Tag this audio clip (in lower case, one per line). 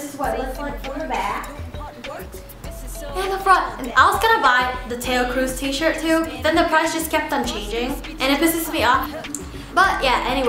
speech
music